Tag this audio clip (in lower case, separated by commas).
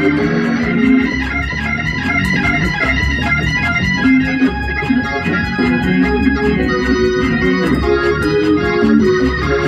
organ, playing hammond organ, hammond organ